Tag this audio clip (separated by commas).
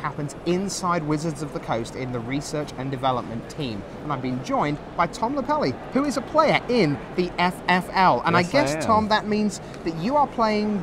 Speech